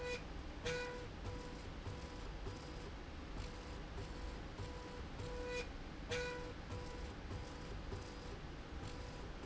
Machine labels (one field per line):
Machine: slide rail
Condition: normal